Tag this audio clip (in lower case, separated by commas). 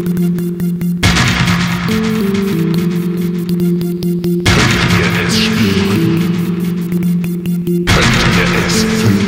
music, electronic music, dubstep